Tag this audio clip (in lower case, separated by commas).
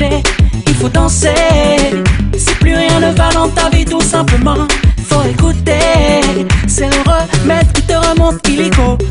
music, music of africa